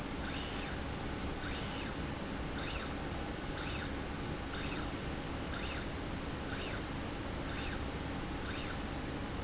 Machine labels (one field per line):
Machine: slide rail